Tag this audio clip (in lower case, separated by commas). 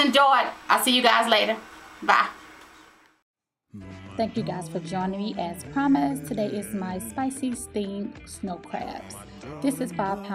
speech, music